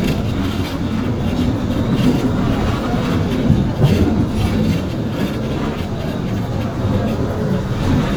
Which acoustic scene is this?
bus